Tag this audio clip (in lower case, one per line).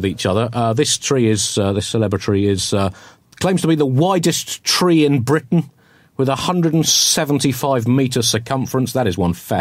speech